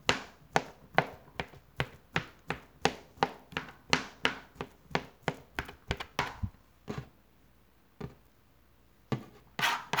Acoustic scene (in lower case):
kitchen